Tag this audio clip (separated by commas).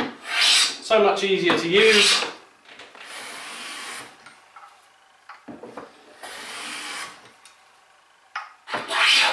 Filing (rasp), Rub, Wood